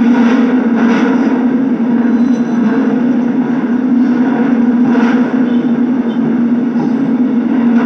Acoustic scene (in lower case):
subway train